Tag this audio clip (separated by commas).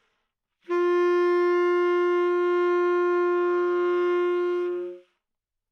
Wind instrument, Music, Musical instrument